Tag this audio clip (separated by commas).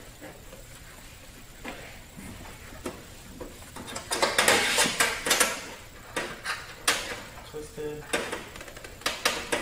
Speech